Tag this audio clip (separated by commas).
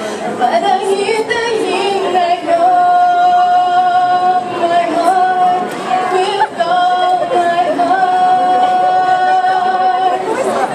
Female singing, Speech